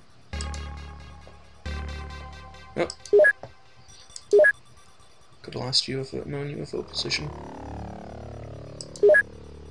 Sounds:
music
speech

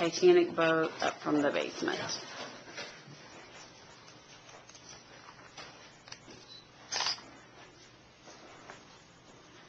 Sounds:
speech

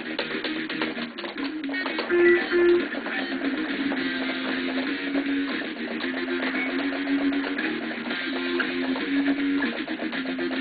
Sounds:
musical instrument
guitar
music

